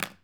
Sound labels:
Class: object falling